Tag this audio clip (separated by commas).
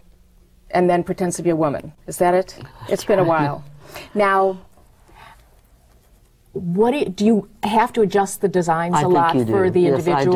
Female speech, Speech